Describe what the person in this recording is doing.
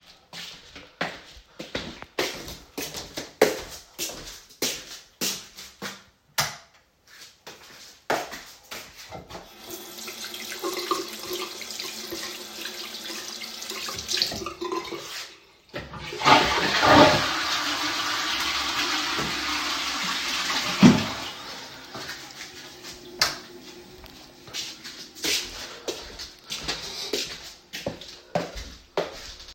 I walked into the bathroom, washed my hands, and flushed the toilet to get rid of the papers.